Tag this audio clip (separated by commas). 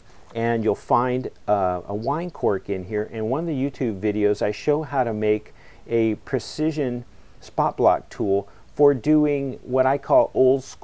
Speech, Crackle